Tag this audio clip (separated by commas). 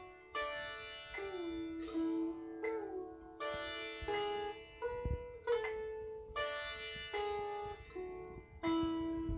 playing sitar